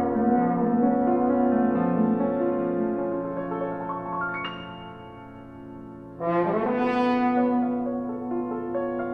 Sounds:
piano, brass instrument, keyboard (musical), french horn, playing french horn

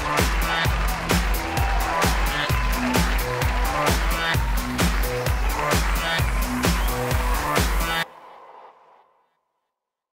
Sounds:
music

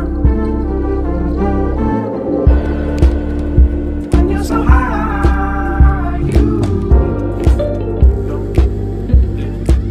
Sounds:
music

